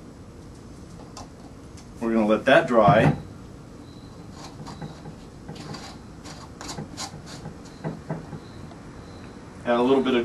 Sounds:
inside a small room, Speech

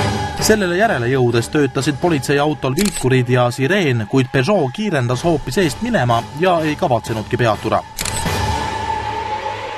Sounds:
Music, Speech

